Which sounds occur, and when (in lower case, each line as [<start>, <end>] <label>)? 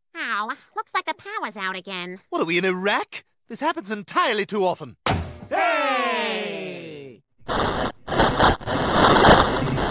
[0.09, 2.23] female speech
[0.10, 4.95] background noise
[0.11, 4.94] conversation
[2.28, 3.21] man speaking
[3.43, 4.94] man speaking
[5.02, 5.50] generic impact sounds
[5.03, 7.19] background noise
[5.48, 7.17] speech
[7.44, 9.90] noise